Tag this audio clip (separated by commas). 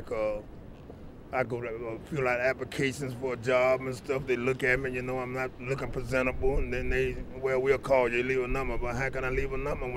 Speech